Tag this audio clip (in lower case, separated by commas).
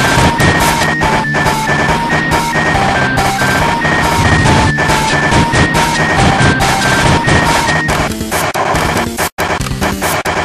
music